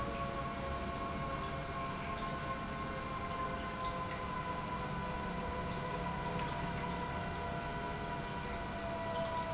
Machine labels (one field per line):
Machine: pump